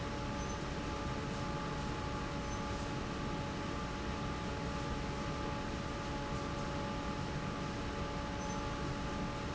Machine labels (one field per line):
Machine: fan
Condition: normal